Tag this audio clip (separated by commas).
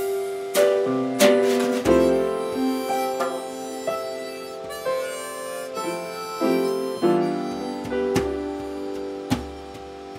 Harmonica, Piano, Drum, Music